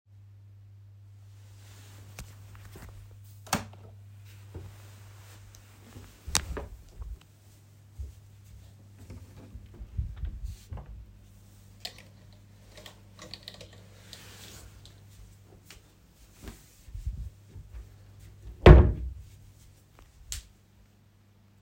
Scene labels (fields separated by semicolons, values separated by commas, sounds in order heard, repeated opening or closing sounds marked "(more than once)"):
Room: bedroom; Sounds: light switch, footsteps, wardrobe or drawer (more than once)